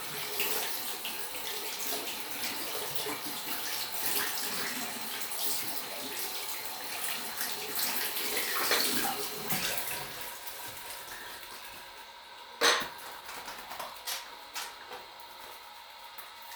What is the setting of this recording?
restroom